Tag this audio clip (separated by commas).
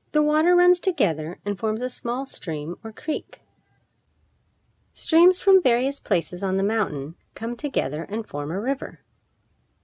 Speech